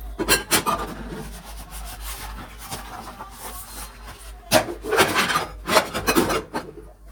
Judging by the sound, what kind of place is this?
kitchen